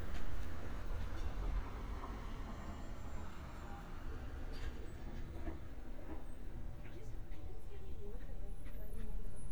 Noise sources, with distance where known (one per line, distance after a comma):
engine of unclear size, far
person or small group talking, near